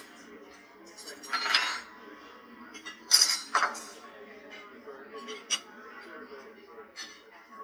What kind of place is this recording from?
restaurant